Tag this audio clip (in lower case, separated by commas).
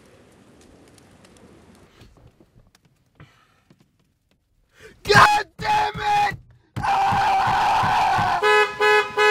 outside, rural or natural, speech, truck horn